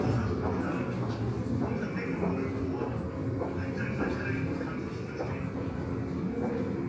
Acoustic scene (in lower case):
subway station